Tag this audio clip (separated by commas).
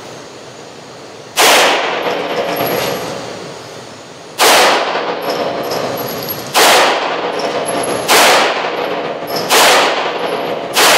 inside a large room or hall